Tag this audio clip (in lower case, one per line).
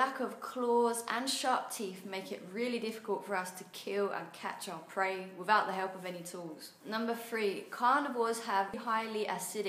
speech